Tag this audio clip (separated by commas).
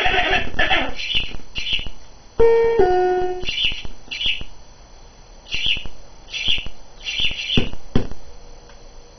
Music, Harpsichord